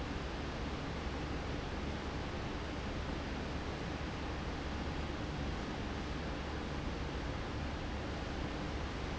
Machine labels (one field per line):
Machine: fan